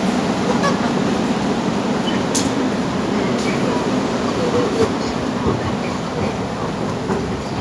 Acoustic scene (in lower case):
subway station